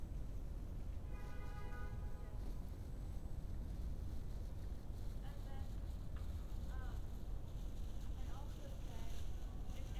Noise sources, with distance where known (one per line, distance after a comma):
car horn
person or small group talking, far